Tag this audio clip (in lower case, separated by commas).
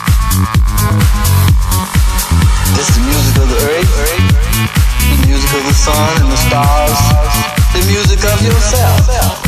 music, dance music, house music, speech